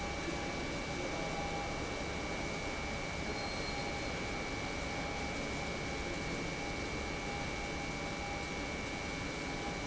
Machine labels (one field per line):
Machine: pump